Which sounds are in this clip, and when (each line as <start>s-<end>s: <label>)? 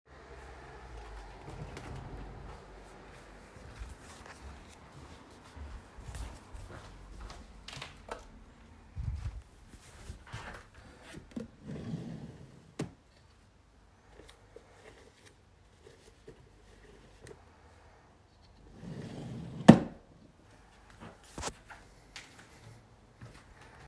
0.8s-7.9s: footsteps
8.0s-8.3s: light switch
9.0s-11.2s: footsteps
11.7s-12.9s: wardrobe or drawer
18.7s-20.1s: wardrobe or drawer
20.8s-23.9s: footsteps